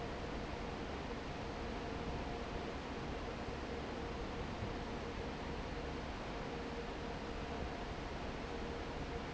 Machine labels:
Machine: fan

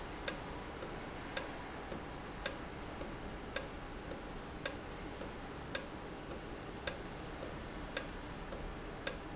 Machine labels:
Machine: valve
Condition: normal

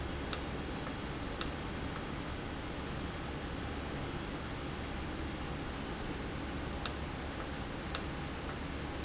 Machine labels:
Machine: valve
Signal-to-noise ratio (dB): -6 dB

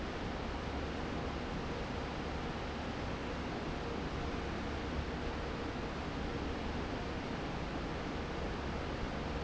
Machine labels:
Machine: fan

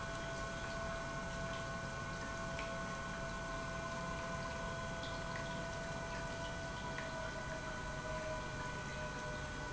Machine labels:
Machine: pump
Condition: normal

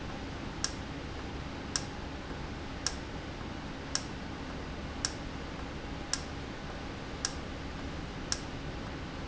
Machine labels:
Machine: valve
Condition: normal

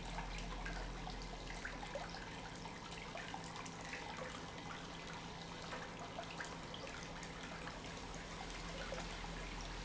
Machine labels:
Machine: pump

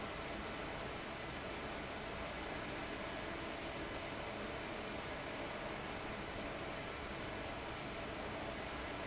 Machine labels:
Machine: fan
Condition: abnormal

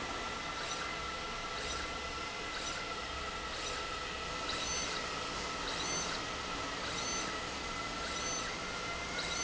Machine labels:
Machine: slide rail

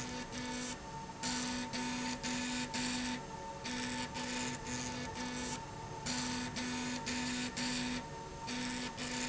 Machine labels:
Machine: slide rail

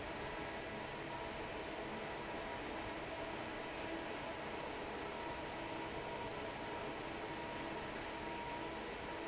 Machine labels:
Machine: fan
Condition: normal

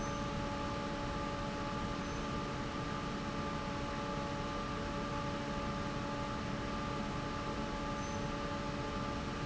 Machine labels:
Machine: fan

